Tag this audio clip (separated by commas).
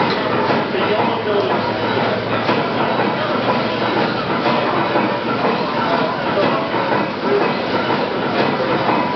Heavy engine (low frequency), Engine